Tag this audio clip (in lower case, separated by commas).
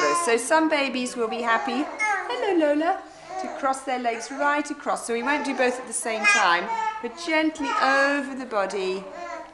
speech